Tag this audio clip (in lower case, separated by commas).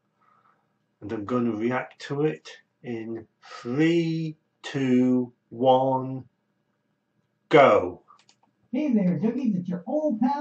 speech